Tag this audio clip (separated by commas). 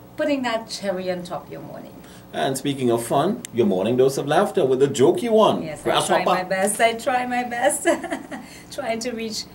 Speech